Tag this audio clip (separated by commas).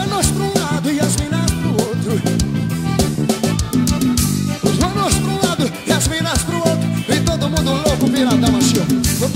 Salsa music, Singing, Music